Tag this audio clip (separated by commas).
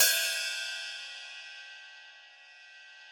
Music, Cymbal, Hi-hat, Musical instrument, Percussion